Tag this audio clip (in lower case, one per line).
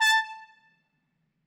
music
musical instrument
brass instrument